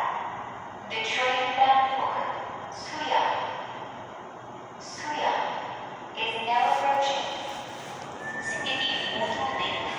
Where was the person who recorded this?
in a subway station